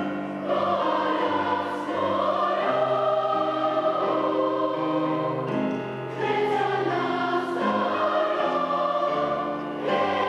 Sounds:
singing choir

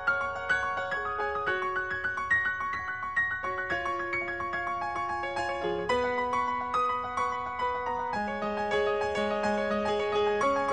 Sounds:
music

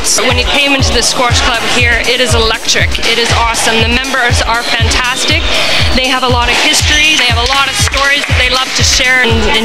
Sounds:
speech
music

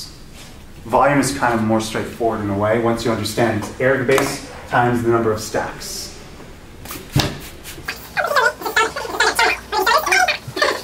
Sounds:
inside a large room or hall
speech

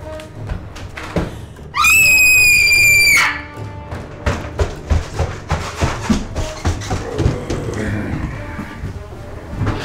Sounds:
run
music

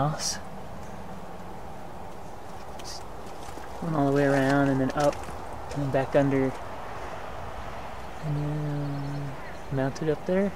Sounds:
speech

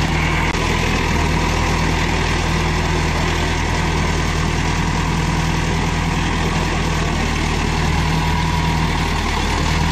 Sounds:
vehicle
outside, rural or natural

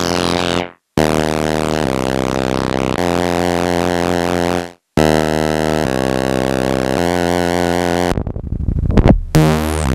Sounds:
music
synthesizer

